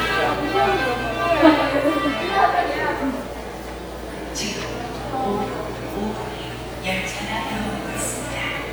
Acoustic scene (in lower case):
subway station